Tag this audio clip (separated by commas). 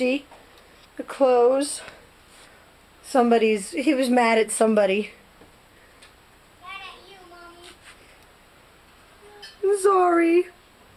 Speech